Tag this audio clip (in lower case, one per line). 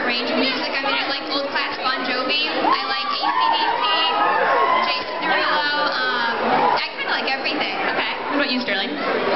speech